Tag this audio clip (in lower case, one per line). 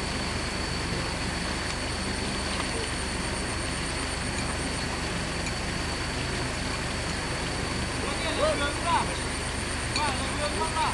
speech